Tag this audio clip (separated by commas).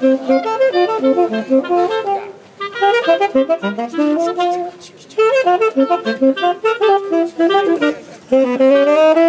Brass instrument, playing saxophone, Saxophone